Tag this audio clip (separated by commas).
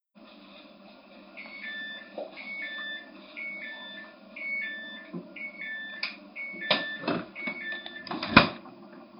Domestic sounds, Door, Alarm, Doorbell